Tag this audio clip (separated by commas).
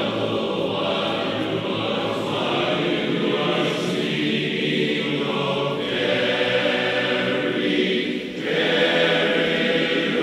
Choir, Male singing